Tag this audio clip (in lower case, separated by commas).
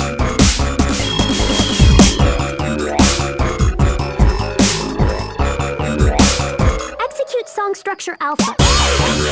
electronic music, music, dubstep